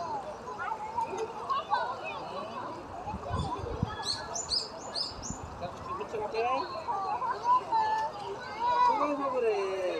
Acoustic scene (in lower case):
park